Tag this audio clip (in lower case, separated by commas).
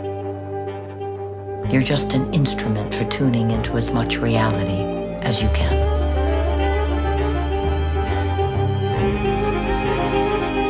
bowed string instrument, music, speech